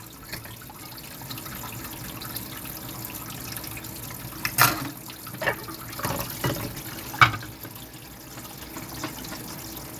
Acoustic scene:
kitchen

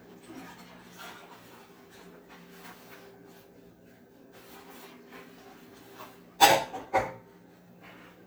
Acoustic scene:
kitchen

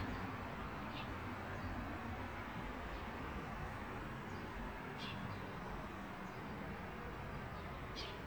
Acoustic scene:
park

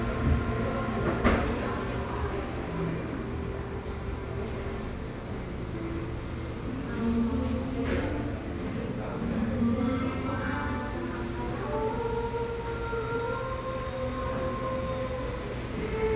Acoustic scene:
cafe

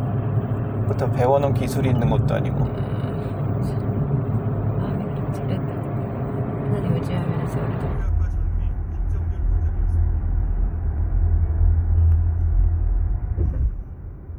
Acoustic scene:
car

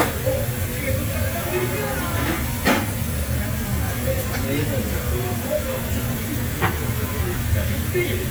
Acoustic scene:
restaurant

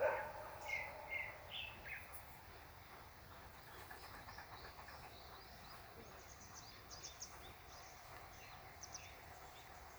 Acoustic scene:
park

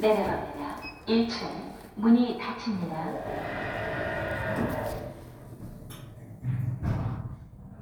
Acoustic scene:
elevator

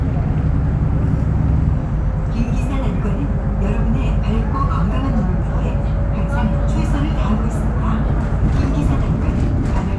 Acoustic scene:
bus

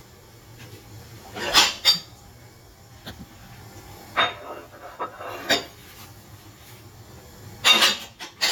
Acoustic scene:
kitchen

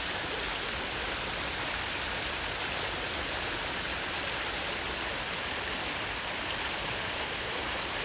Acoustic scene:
park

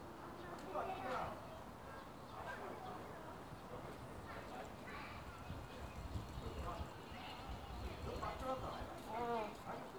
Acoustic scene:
residential area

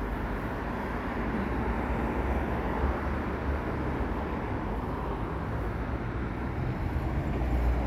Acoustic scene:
street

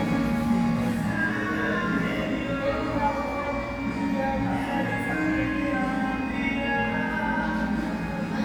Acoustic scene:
cafe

